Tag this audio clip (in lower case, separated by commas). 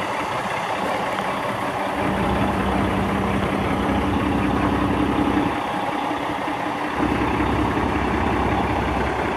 vehicle, truck, outside, rural or natural